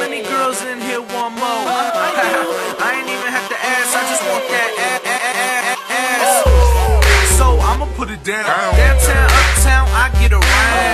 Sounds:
hip hop music

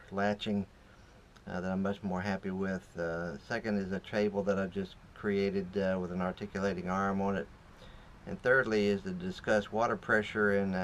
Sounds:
speech

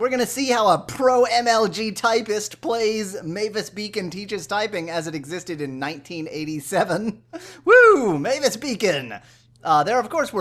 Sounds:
speech

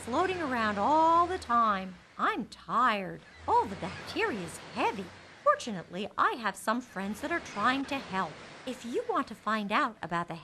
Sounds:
speech

